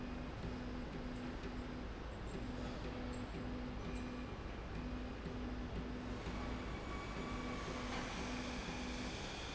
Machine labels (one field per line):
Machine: slide rail